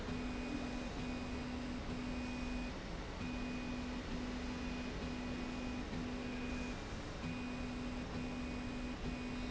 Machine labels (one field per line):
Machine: slide rail